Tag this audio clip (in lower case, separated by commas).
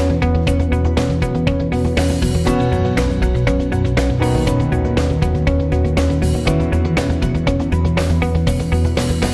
music